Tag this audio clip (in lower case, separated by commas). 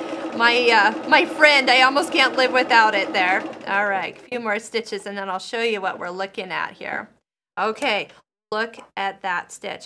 speech, inside a small room